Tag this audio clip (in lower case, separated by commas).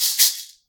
music, musical instrument, rattle (instrument), percussion